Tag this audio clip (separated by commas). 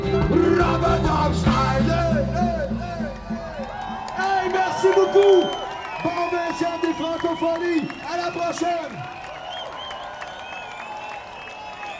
Human group actions, Cheering